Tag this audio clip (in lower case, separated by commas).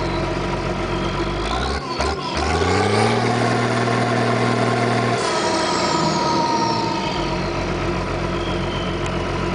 clatter